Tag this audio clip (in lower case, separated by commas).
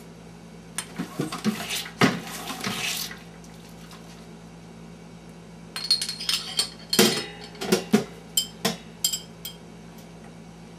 inside a small room